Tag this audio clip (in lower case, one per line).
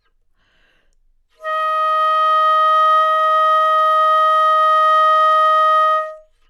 musical instrument
music
wind instrument